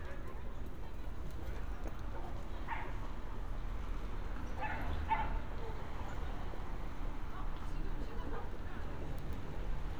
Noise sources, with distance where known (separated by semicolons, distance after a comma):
dog barking or whining